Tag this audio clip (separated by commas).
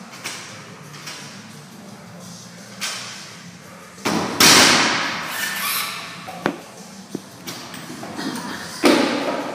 Music, Thump